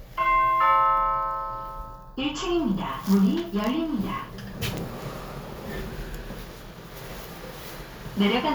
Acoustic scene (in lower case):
elevator